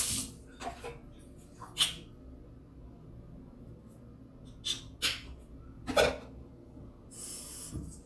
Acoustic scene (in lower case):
restroom